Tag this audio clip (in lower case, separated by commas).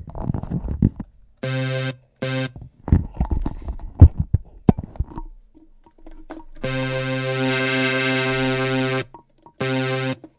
synthesizer, music, electronic music